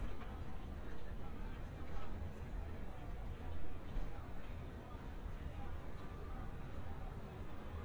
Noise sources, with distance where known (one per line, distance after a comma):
music from an unclear source, far